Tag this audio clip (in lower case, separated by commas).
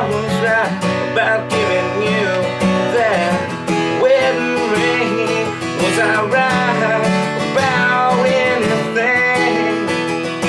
musical instrument, acoustic guitar, strum, guitar, plucked string instrument, singing, music